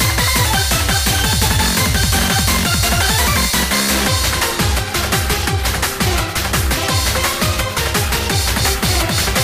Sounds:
music

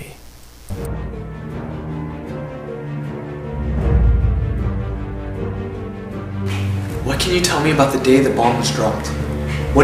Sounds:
speech, music

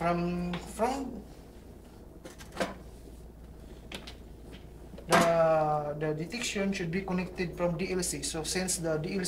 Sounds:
speech

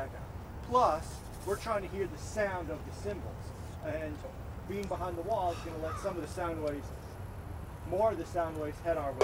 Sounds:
speech

